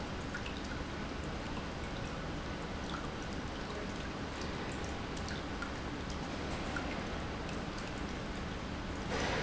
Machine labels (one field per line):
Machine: pump